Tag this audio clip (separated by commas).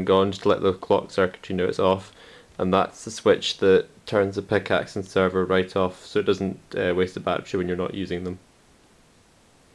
Speech